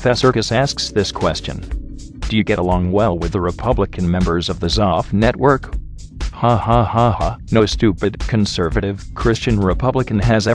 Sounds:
music, speech

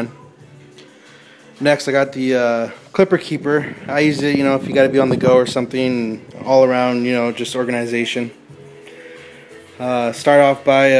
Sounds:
speech

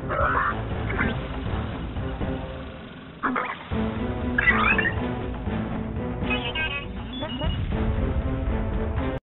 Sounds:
music

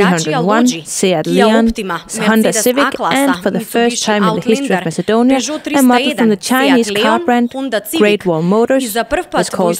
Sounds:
speech

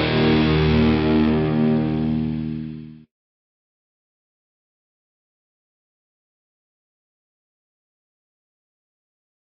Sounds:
music

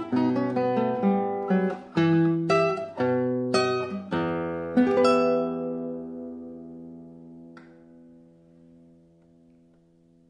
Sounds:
guitar, music

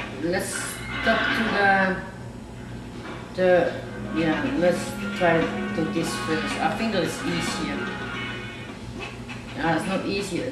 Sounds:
speech, music

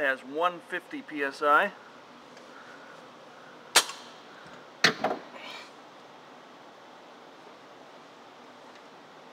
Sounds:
speech

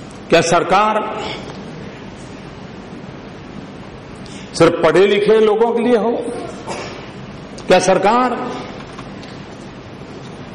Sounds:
narration, speech, man speaking

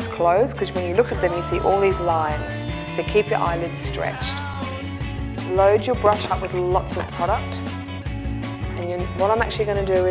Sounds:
speech, music

